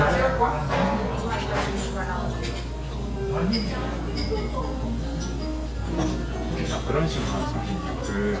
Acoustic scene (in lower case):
restaurant